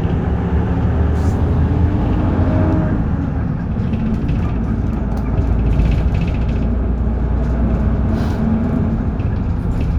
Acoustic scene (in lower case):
bus